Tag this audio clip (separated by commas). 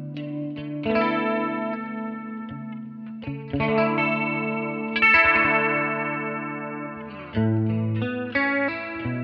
Plucked string instrument, Strum, Electric guitar, Musical instrument, Music